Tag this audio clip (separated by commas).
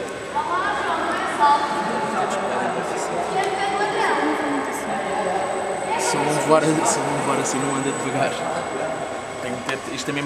Speech